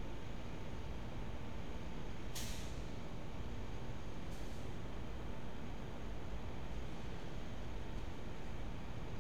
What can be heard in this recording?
large-sounding engine